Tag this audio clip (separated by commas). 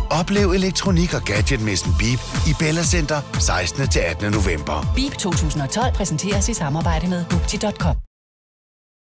Music, Speech